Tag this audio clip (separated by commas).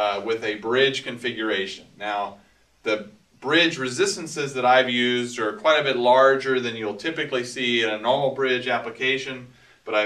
Speech